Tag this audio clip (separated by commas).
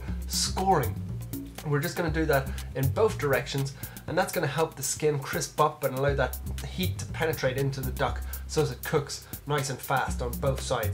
Music, Speech